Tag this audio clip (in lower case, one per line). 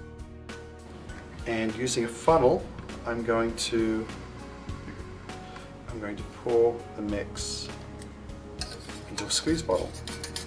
speech
music